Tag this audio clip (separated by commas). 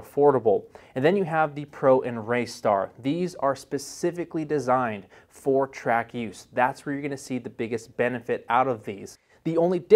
Speech